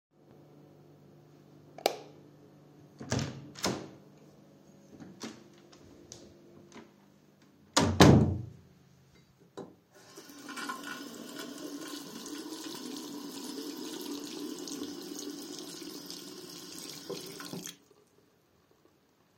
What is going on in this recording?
I turned the lights on, opened the door, stepped in (no footstep sound), closed the door after myself. Then turned on the water. After some time, I turned it off.